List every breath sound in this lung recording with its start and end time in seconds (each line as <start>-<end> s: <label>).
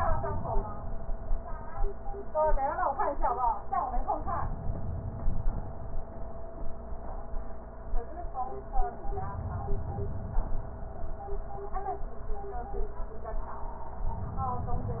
4.15-5.71 s: inhalation
9.08-10.64 s: inhalation